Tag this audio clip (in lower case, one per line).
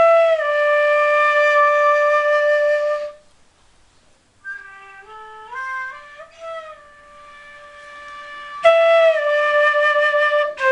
music